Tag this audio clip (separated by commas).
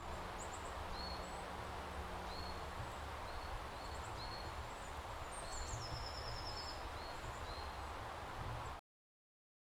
Animal, Wild animals, Bird